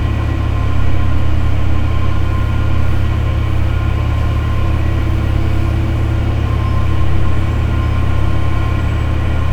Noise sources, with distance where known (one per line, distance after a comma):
large-sounding engine, near